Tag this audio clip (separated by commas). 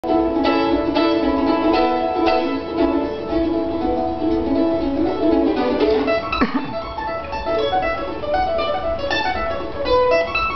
Music, Pizzicato, Country, Musical instrument, Bluegrass, Mandolin